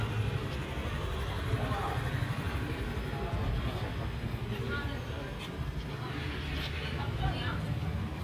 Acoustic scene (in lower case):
residential area